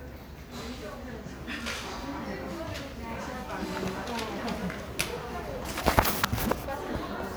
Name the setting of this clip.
crowded indoor space